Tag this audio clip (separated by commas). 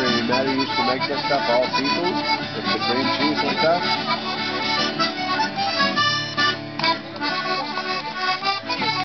Speech, Plucked string instrument, Guitar, Musical instrument, Music